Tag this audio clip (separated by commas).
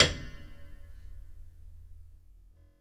Piano, Music, Musical instrument, Keyboard (musical)